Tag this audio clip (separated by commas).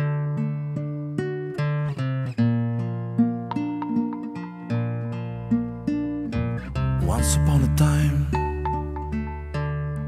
Music